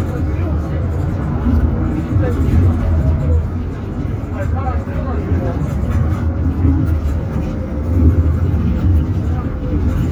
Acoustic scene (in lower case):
bus